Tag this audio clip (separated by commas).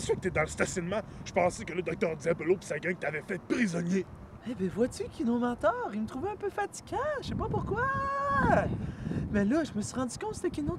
Speech